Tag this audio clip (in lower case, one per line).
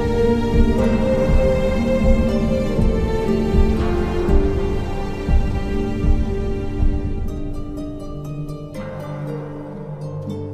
music